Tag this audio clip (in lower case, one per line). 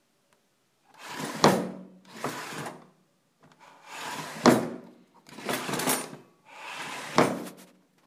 home sounds
drawer open or close